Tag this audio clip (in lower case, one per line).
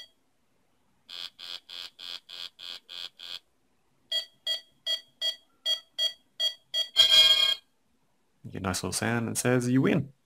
speech
music
inside a small room